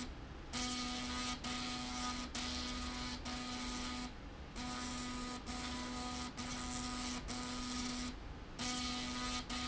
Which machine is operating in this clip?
slide rail